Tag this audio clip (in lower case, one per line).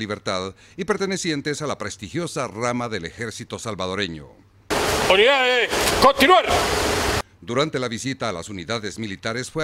speech